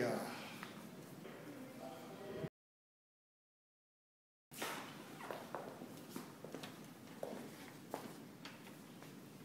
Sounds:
speech

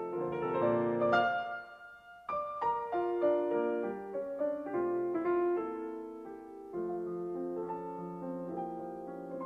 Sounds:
piano

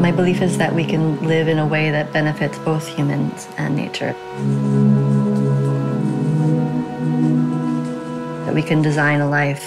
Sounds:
speech, music

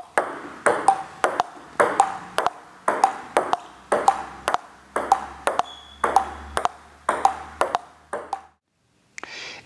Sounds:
playing table tennis

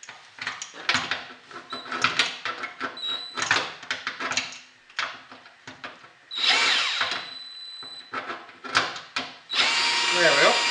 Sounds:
power tool, tools

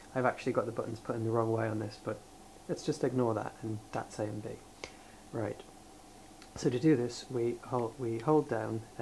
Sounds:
speech

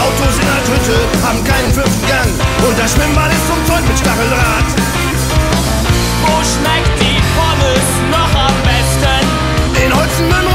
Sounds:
music

